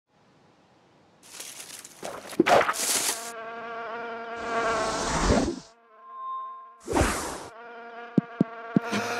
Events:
0.1s-9.1s: wind
1.2s-2.0s: rustle
2.0s-2.7s: sound effect
2.7s-3.2s: rustle
2.7s-5.1s: bee or wasp
3.6s-4.4s: chirp
4.3s-5.7s: sound effect
5.4s-6.8s: bee or wasp
6.0s-6.7s: microphone
6.8s-7.5s: sound effect
7.2s-9.1s: bee or wasp
7.5s-8.1s: chirp
8.2s-8.2s: tick
8.4s-8.4s: tick
8.7s-8.8s: tick
8.8s-9.1s: breathing

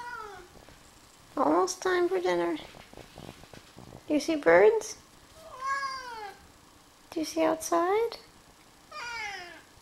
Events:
0.0s-0.5s: cat
0.0s-9.8s: background noise
1.3s-2.6s: female speech
2.5s-3.7s: generic impact sounds
4.1s-4.9s: female speech
5.3s-6.3s: cat
7.0s-8.2s: female speech
8.9s-9.6s: cat

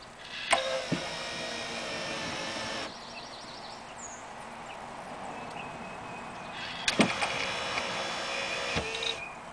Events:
0.0s-9.5s: wind
0.2s-2.8s: sliding door
0.4s-1.0s: generic impact sounds
2.9s-3.8s: chirp
4.0s-4.2s: chirp
4.6s-4.8s: chirp
5.4s-6.6s: chirp
6.5s-9.3s: sliding door
6.8s-6.9s: tick
6.8s-7.4s: generic impact sounds
7.0s-7.0s: tick
7.2s-7.2s: tick
7.7s-7.8s: tick
8.7s-9.1s: generic impact sounds
8.7s-8.8s: tick

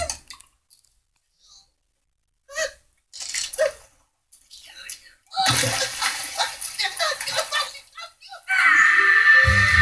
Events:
0.0s-9.8s: background noise
0.0s-9.8s: television
0.0s-0.1s: tick
0.2s-0.4s: generic impact sounds
0.6s-1.0s: generic impact sounds
1.1s-1.2s: tick
1.2s-1.8s: human voice
2.5s-2.8s: human voice
2.9s-3.0s: tick
3.1s-4.1s: sound effect
3.5s-3.8s: human voice
4.3s-5.2s: sound effect
5.3s-5.6s: human voice
5.3s-7.8s: splash
6.0s-6.1s: tick
6.0s-8.5s: speech
7.1s-7.2s: tick
8.4s-9.8s: shout
8.5s-9.8s: music

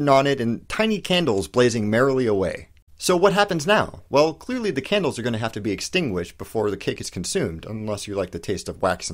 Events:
0.0s-0.6s: man speaking
0.0s-9.1s: background noise
0.7s-2.7s: man speaking
3.0s-4.0s: man speaking
4.1s-9.1s: man speaking

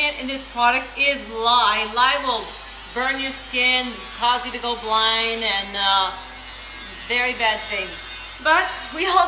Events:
0.0s-2.5s: woman speaking
0.0s-9.2s: mechanisms
2.9s-3.9s: woman speaking
4.2s-6.2s: woman speaking
7.1s-8.0s: woman speaking
8.4s-8.7s: woman speaking
8.9s-9.2s: woman speaking

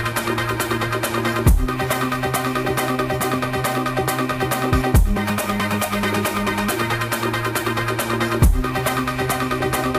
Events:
0.0s-9.9s: music

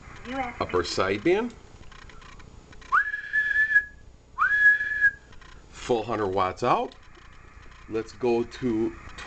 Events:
0.0s-0.8s: noise
0.0s-9.2s: mechanisms
0.2s-0.5s: female speech
0.5s-1.4s: male speech
1.1s-2.9s: noise
2.8s-4.0s: whistling
4.3s-5.1s: whistling
5.2s-5.9s: noise
5.7s-6.8s: male speech
6.3s-9.2s: noise
7.8s-8.0s: male speech
8.2s-8.4s: male speech
8.6s-8.9s: male speech

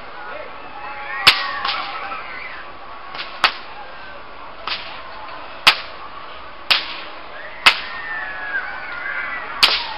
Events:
0.0s-0.5s: man speaking
0.0s-9.9s: background noise
0.0s-9.9s: cheering
0.9s-2.7s: shout
1.2s-2.1s: whip
3.1s-3.6s: whip
4.6s-4.9s: whip
5.6s-5.9s: whip
6.6s-7.1s: whip
7.3s-9.9s: shout
7.6s-8.0s: whip
9.5s-9.9s: whip

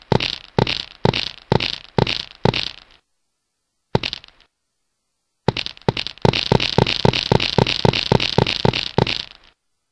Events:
0.0s-9.9s: background noise
0.1s-0.4s: walk
0.5s-0.9s: walk
1.0s-1.3s: walk
1.5s-1.8s: walk
1.9s-2.2s: walk
2.4s-2.7s: walk
2.7s-3.0s: echo
3.9s-4.2s: walk
4.1s-4.4s: echo
5.4s-9.3s: walk
9.3s-9.5s: echo

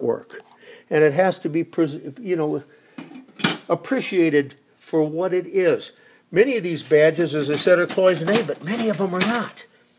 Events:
0.0s-9.9s: background noise
0.0s-0.4s: male speech
0.9s-2.7s: male speech
3.4s-4.5s: male speech
4.9s-5.9s: male speech
6.3s-9.5s: male speech

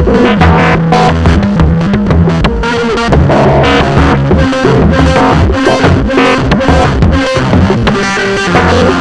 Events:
0.0s-9.0s: music

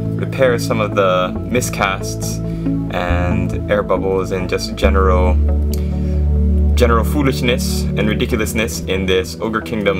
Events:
0.0s-9.9s: background noise
0.0s-9.9s: music
0.2s-1.3s: man speaking
1.5s-2.4s: man speaking
2.4s-2.7s: breathing
2.9s-3.4s: man speaking
3.7s-5.3s: man speaking
5.7s-5.8s: clicking
5.7s-6.2s: breathing
6.7s-7.9s: man speaking
8.0s-8.8s: man speaking
8.9s-9.9s: man speaking

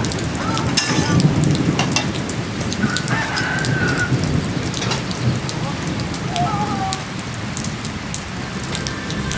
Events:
0.0s-9.3s: rain on surface
0.3s-1.2s: human sounds
0.7s-1.0s: generic impact sounds
1.7s-2.1s: generic impact sounds
2.7s-4.1s: crowing
4.7s-5.0s: generic impact sounds
5.4s-5.8s: human sounds
6.2s-7.0s: human sounds
8.7s-9.3s: music

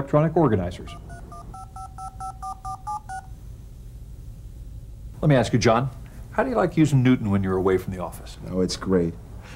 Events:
0.0s-0.9s: male speech
0.0s-9.5s: background noise
0.0s-9.5s: conversation
0.8s-0.9s: telephone dialing
1.0s-1.2s: telephone dialing
1.3s-1.4s: telephone dialing
1.5s-1.6s: telephone dialing
1.7s-1.8s: telephone dialing
1.9s-2.0s: telephone dialing
2.2s-2.3s: telephone dialing
2.4s-2.5s: telephone dialing
2.6s-2.7s: telephone dialing
2.8s-2.9s: telephone dialing
3.0s-3.2s: telephone dialing
5.2s-5.8s: male speech
5.9s-5.9s: tick
6.0s-6.1s: tick
6.3s-9.1s: male speech
9.4s-9.5s: breathing

